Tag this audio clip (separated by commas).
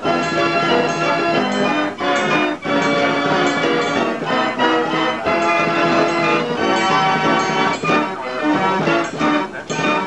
Music